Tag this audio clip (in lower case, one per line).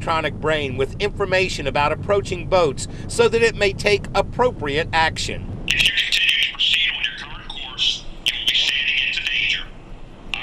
boat
motorboat
vehicle
speech